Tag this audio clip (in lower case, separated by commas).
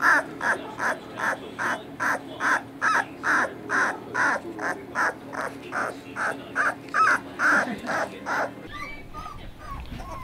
pets, dog, speech, animal